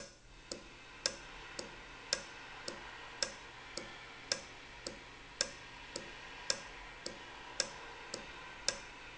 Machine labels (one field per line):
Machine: valve